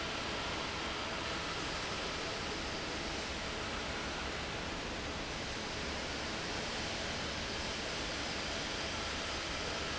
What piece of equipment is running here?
fan